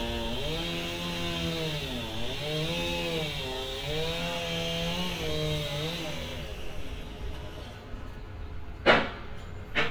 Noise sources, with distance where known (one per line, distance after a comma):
chainsaw, near